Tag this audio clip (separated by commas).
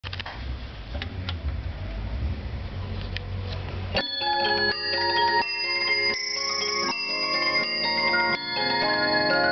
Bell